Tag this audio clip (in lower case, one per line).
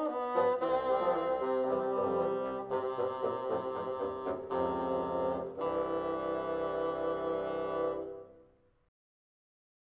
playing bassoon